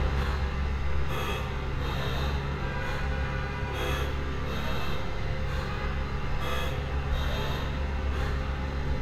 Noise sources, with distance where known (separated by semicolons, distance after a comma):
large-sounding engine, near; car horn, far